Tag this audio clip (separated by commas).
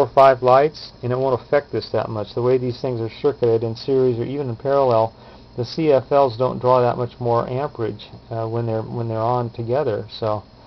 Speech